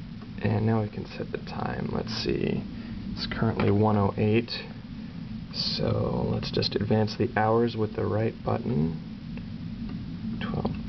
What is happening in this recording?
A man speaking followed by a few faint clicks